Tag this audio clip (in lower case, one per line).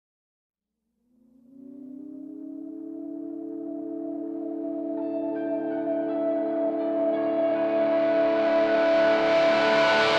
music